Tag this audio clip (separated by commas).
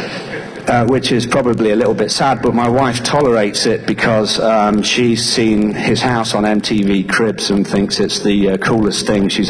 Speech